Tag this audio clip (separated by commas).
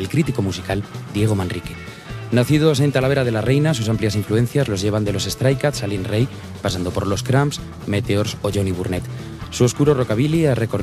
Speech, Music